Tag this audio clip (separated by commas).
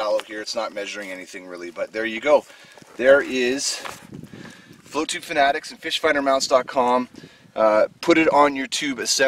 Speech